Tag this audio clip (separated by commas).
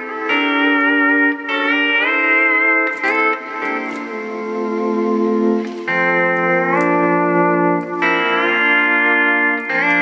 Hammond organ, Music, slide guitar